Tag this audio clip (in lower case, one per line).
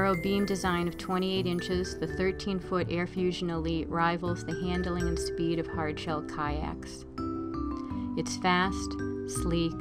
speech
music